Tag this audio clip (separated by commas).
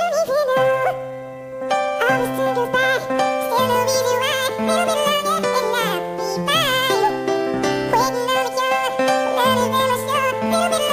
Music